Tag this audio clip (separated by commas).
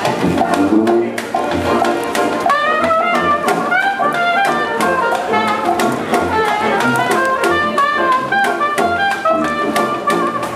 playing cornet